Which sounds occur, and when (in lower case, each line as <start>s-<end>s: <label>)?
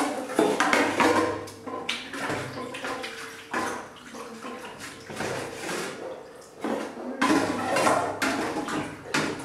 0.0s-1.5s: dishes, pots and pans
0.0s-9.4s: background noise
1.7s-3.8s: dishes, pots and pans
2.1s-6.2s: water
3.9s-5.9s: dishes, pots and pans
6.3s-7.0s: dishes, pots and pans
6.7s-6.9s: water
7.2s-9.4s: dishes, pots and pans
8.7s-9.4s: water